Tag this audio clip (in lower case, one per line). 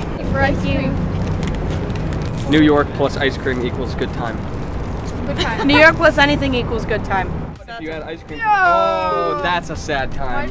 speech